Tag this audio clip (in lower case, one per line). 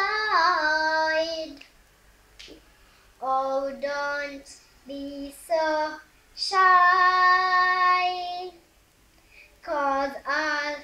child singing